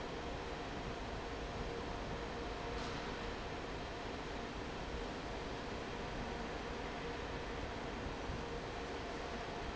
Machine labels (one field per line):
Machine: fan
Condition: normal